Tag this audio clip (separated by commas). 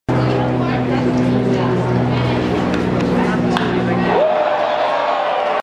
Speech